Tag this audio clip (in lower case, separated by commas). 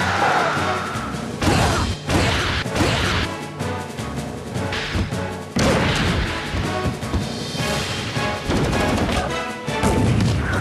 music